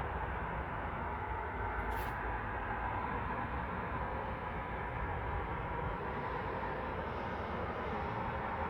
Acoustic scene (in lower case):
street